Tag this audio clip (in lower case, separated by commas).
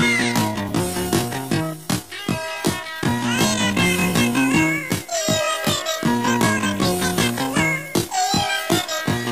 music